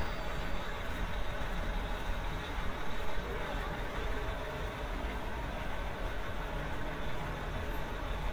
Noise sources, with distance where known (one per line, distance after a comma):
large-sounding engine, near
unidentified human voice